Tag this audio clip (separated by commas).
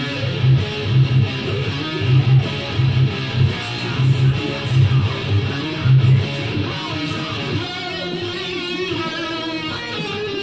Music, Guitar, Musical instrument